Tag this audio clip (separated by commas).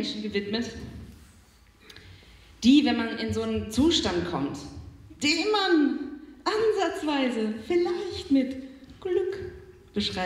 Speech